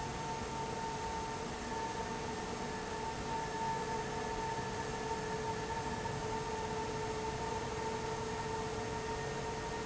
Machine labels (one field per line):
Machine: fan